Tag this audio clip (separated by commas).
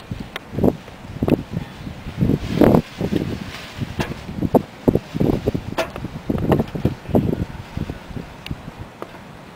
wind noise, Wind noise (microphone)